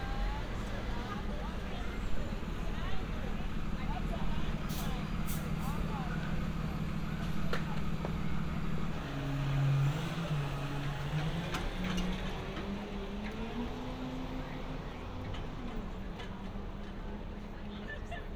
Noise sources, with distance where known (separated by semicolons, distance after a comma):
large-sounding engine, near; person or small group talking